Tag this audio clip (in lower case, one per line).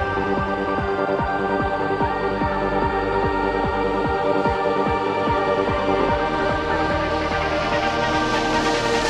music